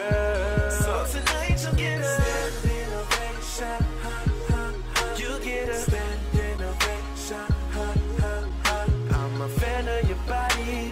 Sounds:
pop music
music

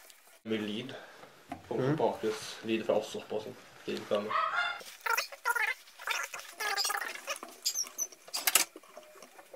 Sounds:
speech

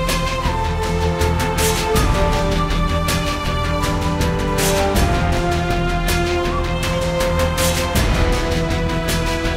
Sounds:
music

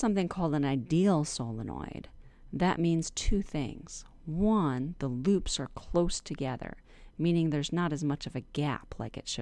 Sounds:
speech

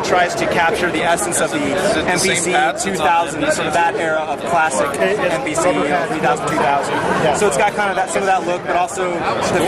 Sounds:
speech

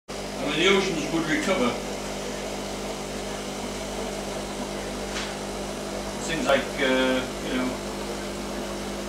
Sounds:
speech

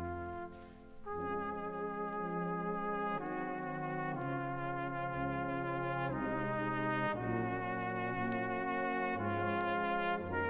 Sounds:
trumpet
musical instrument
playing trumpet
brass instrument
music

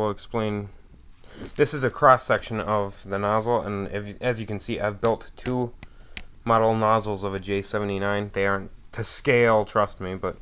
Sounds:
speech

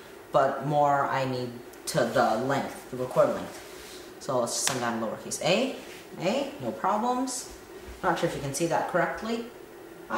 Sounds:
speech
inside a small room

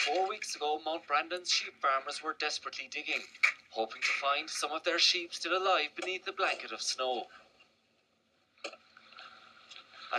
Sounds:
speech

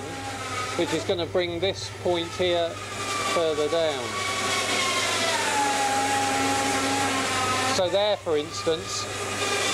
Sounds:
speech
wood

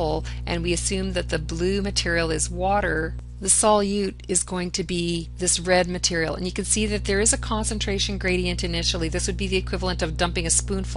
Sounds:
speech

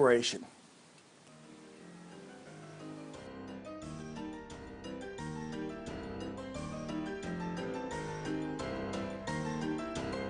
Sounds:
music
speech

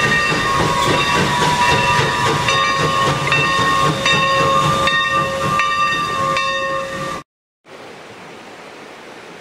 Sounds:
clickety-clack
train wagon
train
rail transport

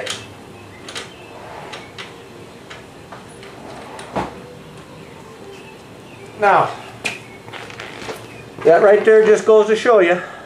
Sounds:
speech

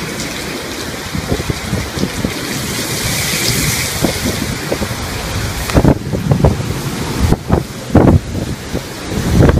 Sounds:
rain

